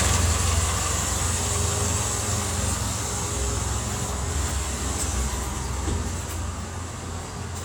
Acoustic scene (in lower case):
street